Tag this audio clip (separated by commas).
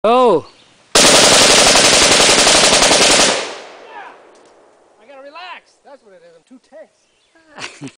Speech